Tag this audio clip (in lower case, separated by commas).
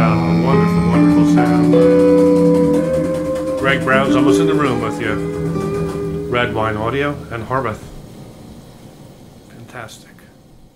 inside a small room, music, speech